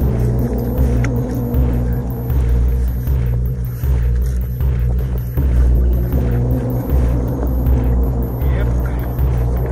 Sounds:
speech, water vehicle, vehicle, music

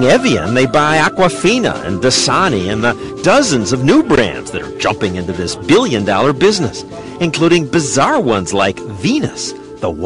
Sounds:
music, speech

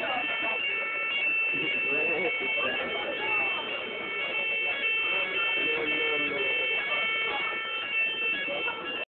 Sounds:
speech

